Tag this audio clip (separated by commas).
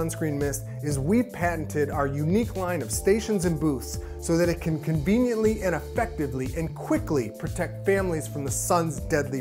Music, Speech